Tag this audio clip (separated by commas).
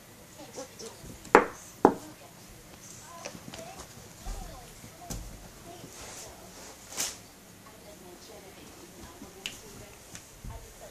ferret dooking